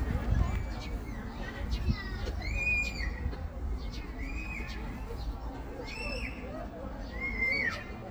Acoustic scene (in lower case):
park